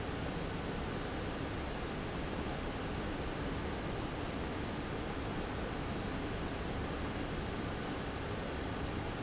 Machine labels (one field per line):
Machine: fan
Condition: abnormal